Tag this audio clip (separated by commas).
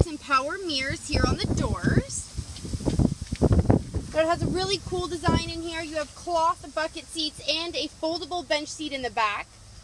Speech